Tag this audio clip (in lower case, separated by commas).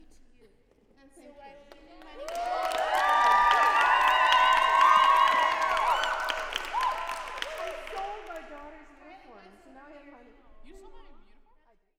applause, human group actions, cheering